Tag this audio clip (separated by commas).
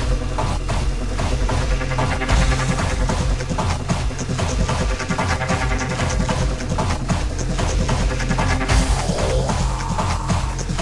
Soundtrack music, Music